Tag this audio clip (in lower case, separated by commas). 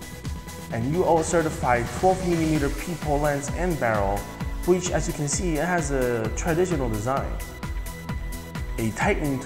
speech, music